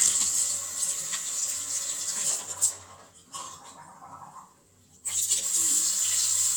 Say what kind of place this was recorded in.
restroom